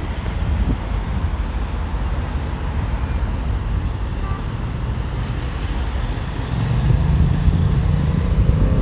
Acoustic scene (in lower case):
street